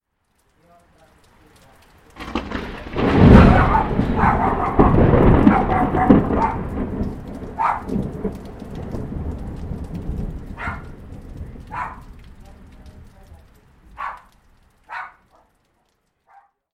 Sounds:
Thunder, Thunderstorm

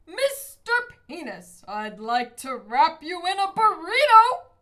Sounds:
Shout, Human voice, Yell

